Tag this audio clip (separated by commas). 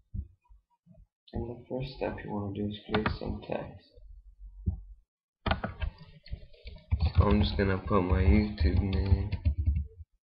Speech